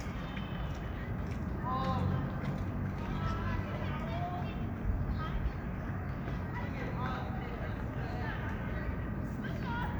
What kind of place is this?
park